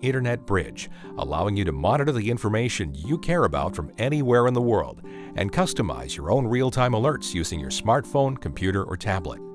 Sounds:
Music, Speech

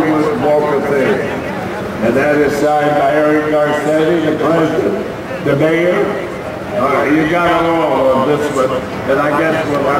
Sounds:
Speech

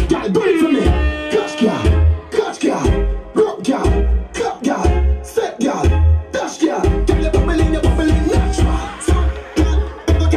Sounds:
Sound effect, Music

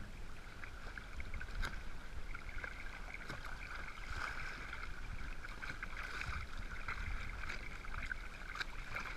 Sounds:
Sailboat

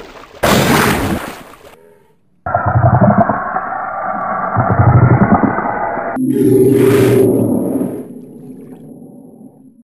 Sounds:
Sound effect

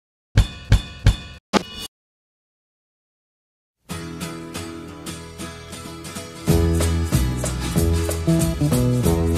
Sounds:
Snare drum, Drum, Hi-hat, Drum kit

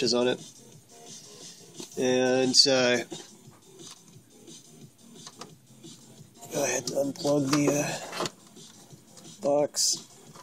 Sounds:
inside a small room, Music, Speech

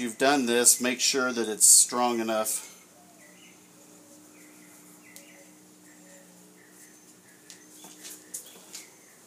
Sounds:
Pigeon, Speech

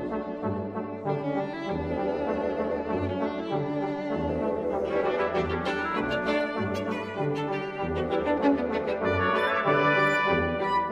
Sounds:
String section

